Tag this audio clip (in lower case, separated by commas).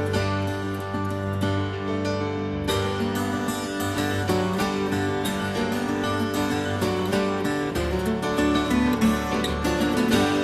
music